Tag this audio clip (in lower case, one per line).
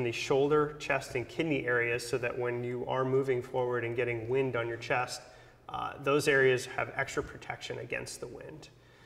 speech